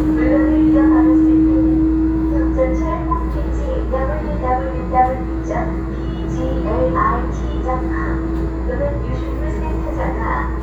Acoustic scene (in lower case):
subway train